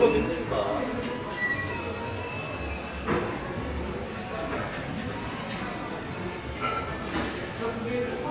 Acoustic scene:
crowded indoor space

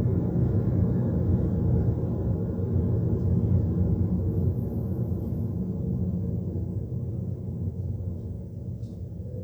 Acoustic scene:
car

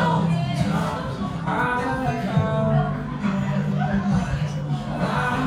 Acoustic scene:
cafe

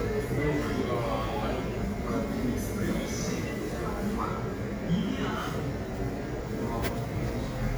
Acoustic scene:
cafe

